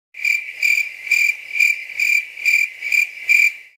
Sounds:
cricket, wild animals, insect, animal

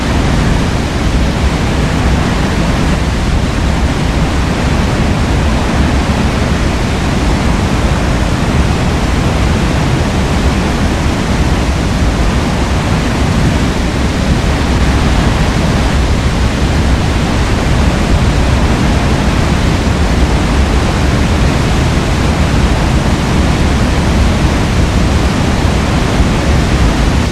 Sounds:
water

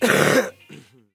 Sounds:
respiratory sounds, cough

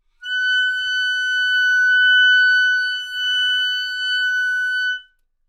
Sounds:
music, musical instrument, woodwind instrument

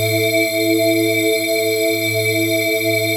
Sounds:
musical instrument, keyboard (musical), organ, music

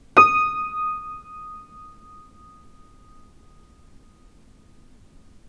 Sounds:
musical instrument, piano, music, keyboard (musical)

